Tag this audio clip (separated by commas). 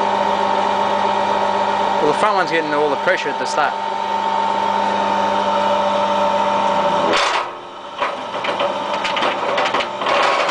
Speech